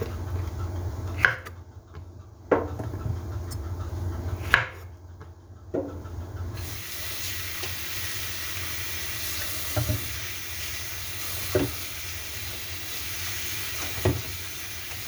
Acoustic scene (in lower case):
kitchen